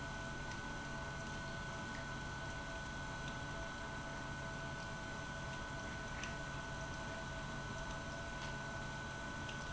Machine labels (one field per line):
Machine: pump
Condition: abnormal